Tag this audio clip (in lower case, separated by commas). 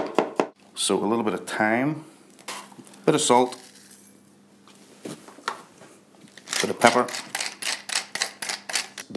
speech